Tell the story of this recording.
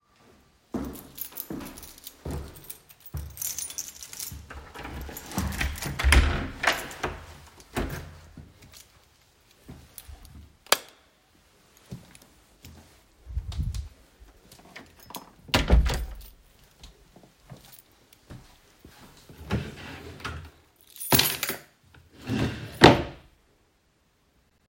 I go to the room, take out my keys, open the door, turn the light switch on, close the door behind me, walk to the drawer, open it, put the keys inside, and close the drawer.